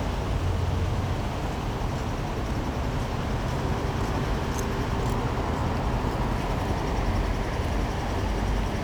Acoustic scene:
street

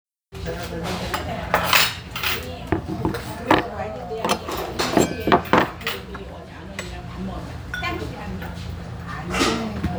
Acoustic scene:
restaurant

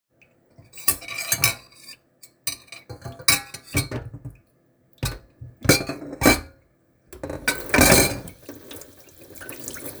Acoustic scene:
kitchen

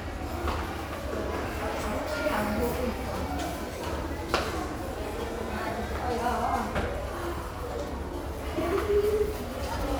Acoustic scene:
restaurant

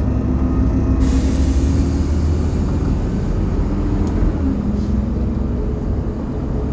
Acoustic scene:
bus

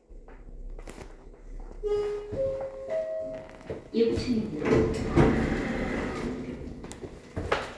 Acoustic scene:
elevator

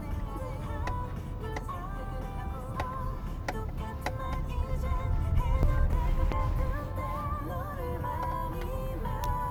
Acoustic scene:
car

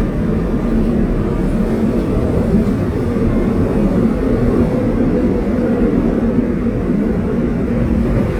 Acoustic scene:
subway train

